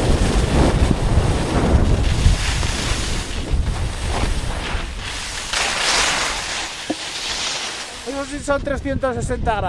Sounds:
skiing

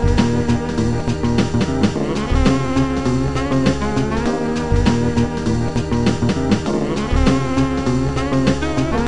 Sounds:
music
soundtrack music

